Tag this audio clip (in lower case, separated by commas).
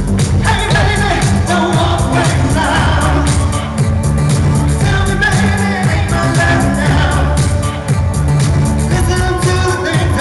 music